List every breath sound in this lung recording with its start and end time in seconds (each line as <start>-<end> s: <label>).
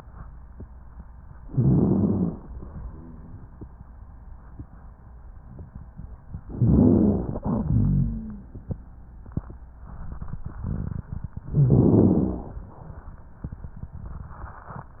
1.41-2.47 s: inhalation
1.49-2.38 s: wheeze
6.41-7.47 s: inhalation
6.57-7.25 s: wheeze
7.41-8.46 s: wheeze
7.46-8.97 s: exhalation
11.50-12.61 s: inhalation
11.53-12.47 s: wheeze